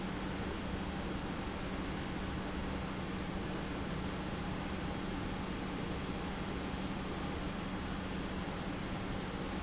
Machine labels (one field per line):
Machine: pump